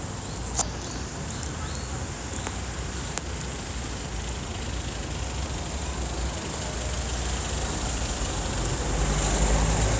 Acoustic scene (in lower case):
street